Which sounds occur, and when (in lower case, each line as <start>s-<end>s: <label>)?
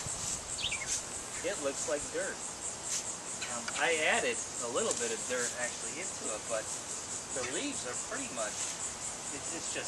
0.0s-9.8s: cricket
0.0s-9.8s: rustle
0.5s-0.9s: chirp
1.4s-9.8s: conversation
2.8s-3.1s: scrape
3.4s-3.8s: bird
3.6s-3.8s: generic impact sounds
9.3s-9.8s: man speaking